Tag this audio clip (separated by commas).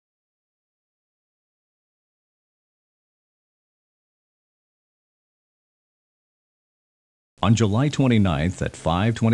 Speech